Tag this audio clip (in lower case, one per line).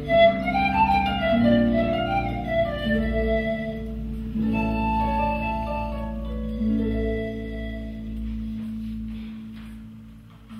pizzicato
harp